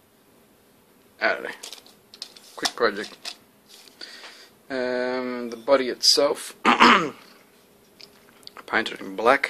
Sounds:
Speech, inside a small room

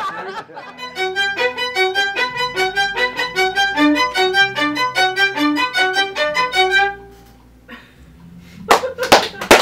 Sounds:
Music, fiddle

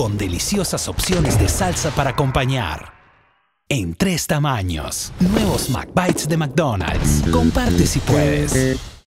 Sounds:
Speech, Music

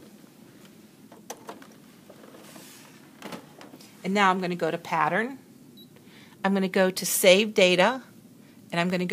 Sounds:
Speech

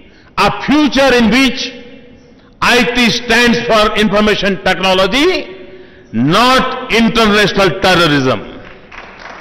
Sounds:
Speech, Narration, man speaking

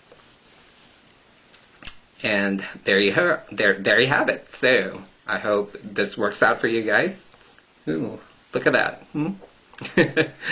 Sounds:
Speech, inside a small room

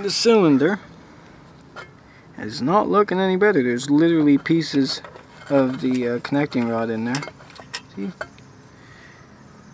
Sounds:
Speech

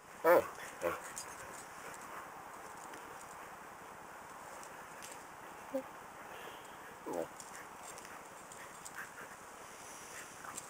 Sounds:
Animal, Domestic animals, Dog

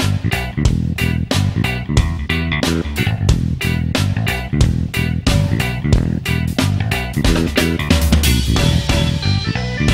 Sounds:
Music

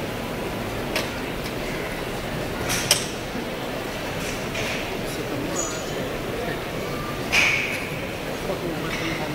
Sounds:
Speech

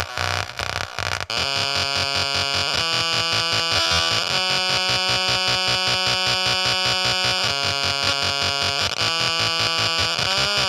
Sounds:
Music, Musical instrument, Effects unit

